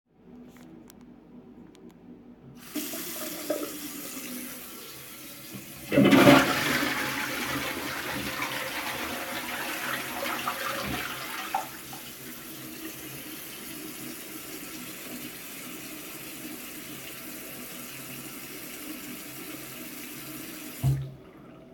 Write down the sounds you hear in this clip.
running water, toilet flushing